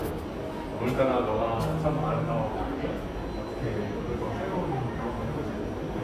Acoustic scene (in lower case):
subway station